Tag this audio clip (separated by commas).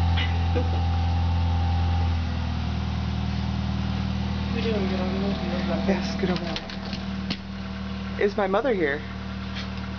outside, urban or man-made, Speech